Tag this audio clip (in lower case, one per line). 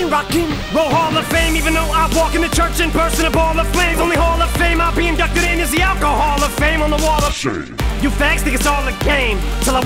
rapping